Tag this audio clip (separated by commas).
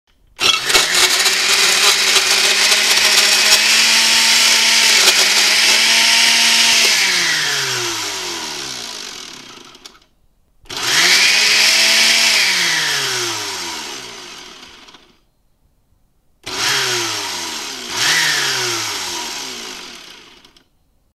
home sounds